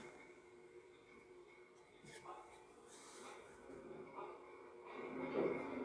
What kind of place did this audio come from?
subway train